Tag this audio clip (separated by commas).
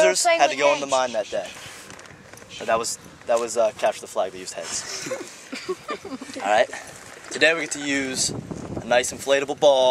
Male speech, Speech